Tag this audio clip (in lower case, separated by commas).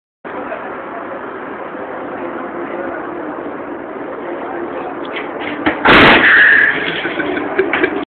crash, speech